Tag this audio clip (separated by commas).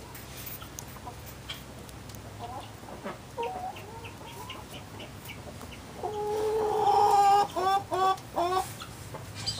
chicken clucking, Chicken, Cluck, Fowl